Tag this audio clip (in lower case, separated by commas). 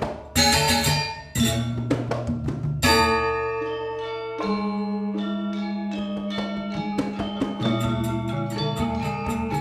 music, musical instrument, percussion